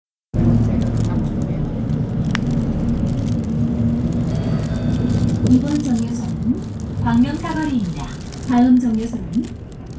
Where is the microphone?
on a bus